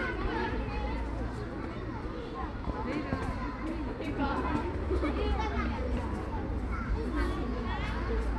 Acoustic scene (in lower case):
park